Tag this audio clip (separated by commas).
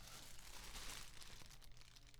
Fire